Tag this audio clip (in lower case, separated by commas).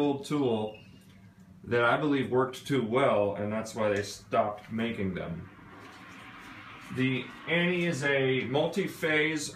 speech